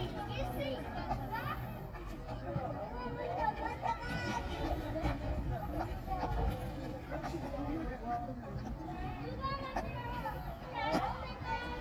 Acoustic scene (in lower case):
park